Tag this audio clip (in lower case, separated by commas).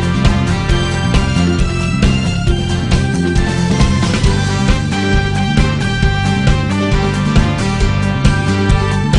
music